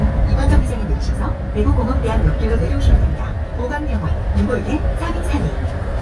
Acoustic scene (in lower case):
bus